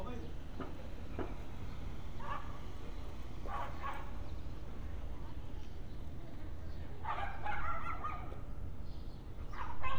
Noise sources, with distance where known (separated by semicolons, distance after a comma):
dog barking or whining, near